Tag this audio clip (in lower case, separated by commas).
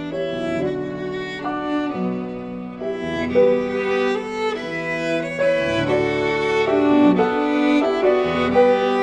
violin, musical instrument, music